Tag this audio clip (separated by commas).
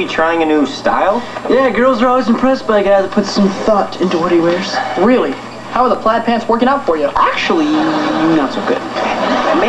Speech